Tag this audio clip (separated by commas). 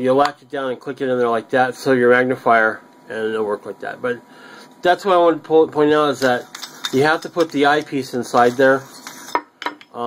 Speech